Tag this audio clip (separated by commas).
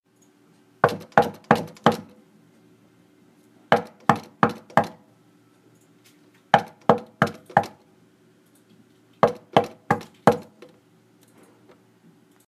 Domestic sounds, Door, Knock